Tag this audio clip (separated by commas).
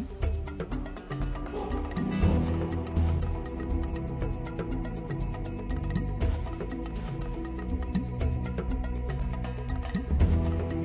Background music, Music, Theme music